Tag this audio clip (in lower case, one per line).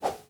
swoosh